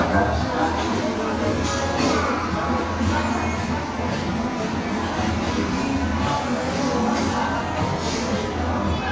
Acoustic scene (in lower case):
crowded indoor space